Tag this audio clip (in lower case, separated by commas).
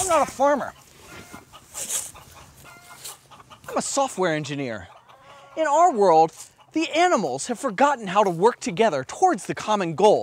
animal, speech